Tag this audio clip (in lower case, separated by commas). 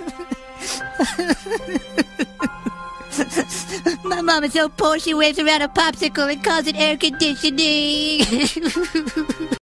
speech, music